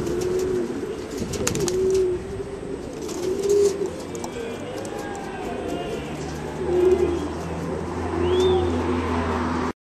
Birds are cooing, wings are flapping, and a motor vehicle passes by